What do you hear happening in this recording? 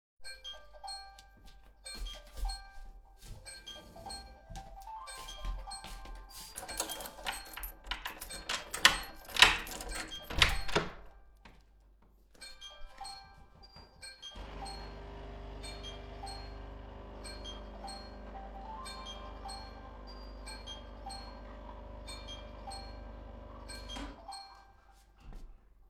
Someone's phone was ringing, soneone washed the dishes, I left the office